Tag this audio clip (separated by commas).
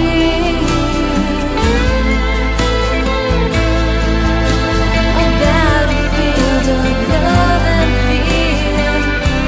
Music